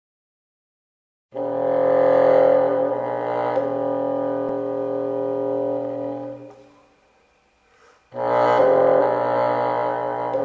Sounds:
playing bassoon

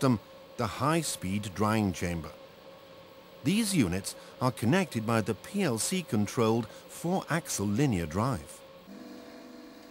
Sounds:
Speech

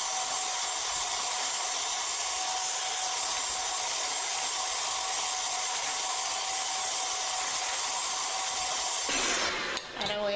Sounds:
inside a small room, Speech

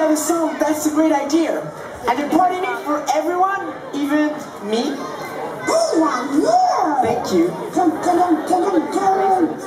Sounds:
Speech

